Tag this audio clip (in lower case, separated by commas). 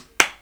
clapping, hands